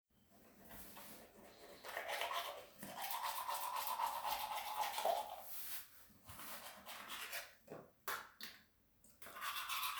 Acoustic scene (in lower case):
restroom